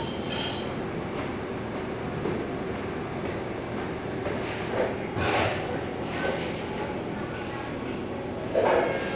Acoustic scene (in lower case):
cafe